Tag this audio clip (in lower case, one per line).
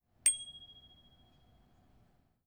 bicycle
alarm
bell
vehicle
bicycle bell